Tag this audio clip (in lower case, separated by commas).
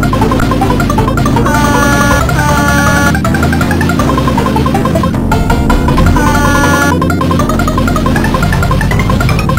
music